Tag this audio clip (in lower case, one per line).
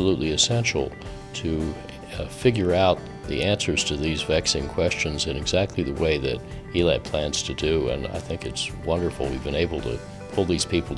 speech
music